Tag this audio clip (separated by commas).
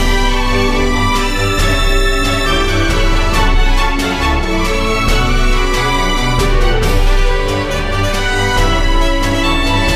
Music